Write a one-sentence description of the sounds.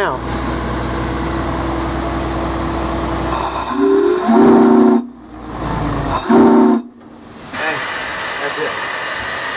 A motor is running, a hiss occurs, a train whistle blows a low tone, and an adult male speaks in the background